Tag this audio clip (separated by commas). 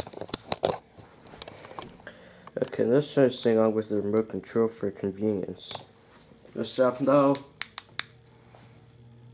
Speech